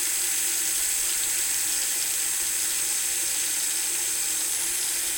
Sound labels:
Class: water tap